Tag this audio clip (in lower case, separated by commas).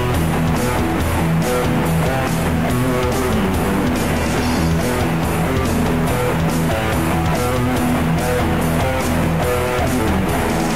strum, electric guitar, bass guitar, guitar, music, musical instrument, plucked string instrument